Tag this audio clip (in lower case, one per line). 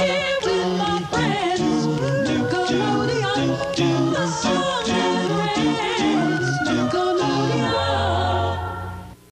music
female singing